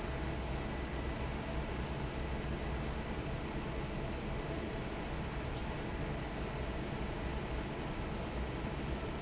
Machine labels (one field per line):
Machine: fan